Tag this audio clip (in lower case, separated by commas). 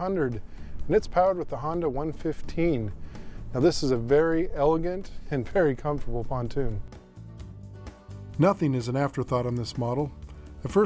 speech, music